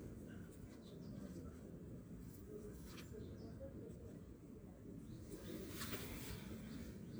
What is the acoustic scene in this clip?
park